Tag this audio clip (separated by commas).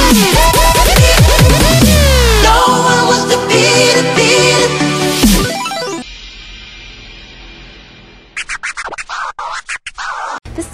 Music